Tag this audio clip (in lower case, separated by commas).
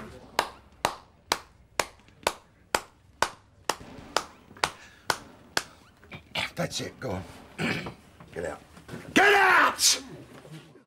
speech, inside a small room